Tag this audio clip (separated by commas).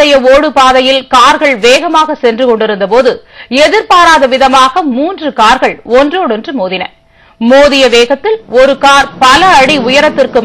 Speech